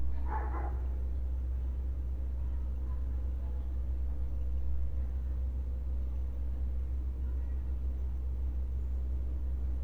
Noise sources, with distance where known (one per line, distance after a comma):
dog barking or whining, far